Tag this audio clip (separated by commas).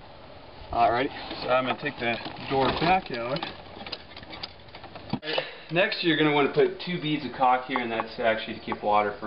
Speech, Tap